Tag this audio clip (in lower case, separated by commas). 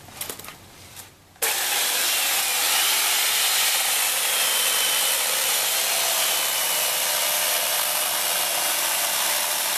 wood